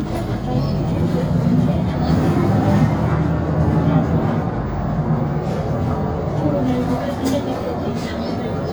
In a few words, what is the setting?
bus